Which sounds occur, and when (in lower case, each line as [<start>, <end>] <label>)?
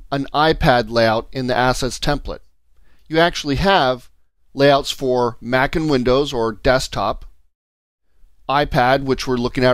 [0.00, 4.30] background noise
[0.14, 1.23] male speech
[1.34, 2.41] male speech
[2.70, 3.08] breathing
[2.73, 2.80] clicking
[3.00, 3.10] clicking
[3.12, 4.08] male speech
[4.41, 7.50] background noise
[4.55, 5.36] male speech
[5.45, 6.55] male speech
[6.66, 7.15] male speech
[8.05, 8.35] breathing
[8.06, 9.73] background noise
[8.51, 9.73] male speech